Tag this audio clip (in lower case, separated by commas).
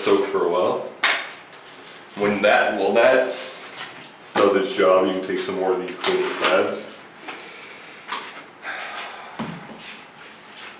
speech